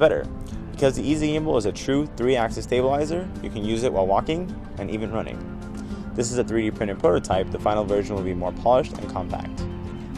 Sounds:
Speech, Music

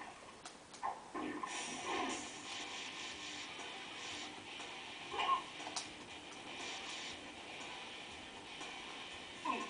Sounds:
Music

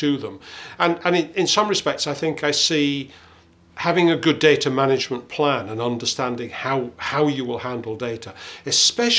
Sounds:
Speech

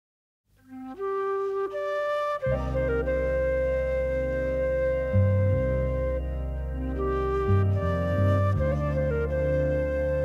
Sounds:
Music, Flute

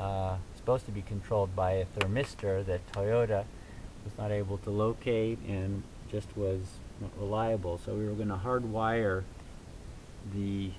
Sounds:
Speech

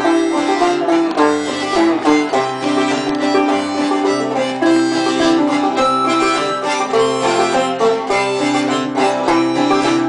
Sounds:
Music, Banjo

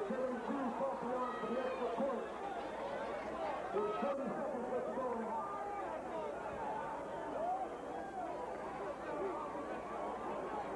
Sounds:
Speech

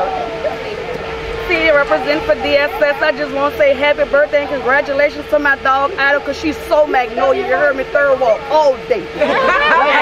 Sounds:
Speech

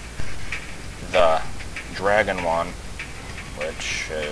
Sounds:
Speech

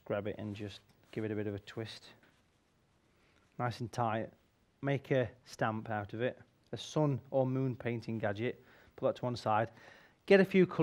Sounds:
Speech

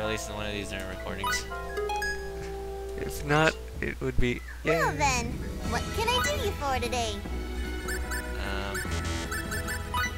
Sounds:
Music, Speech

